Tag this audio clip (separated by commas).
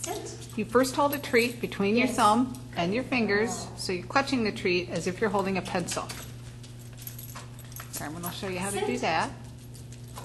Speech